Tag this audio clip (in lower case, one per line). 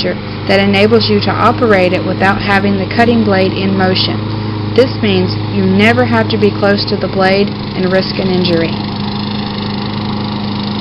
speech